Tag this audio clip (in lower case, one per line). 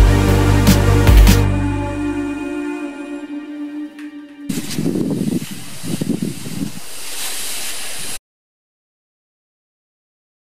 music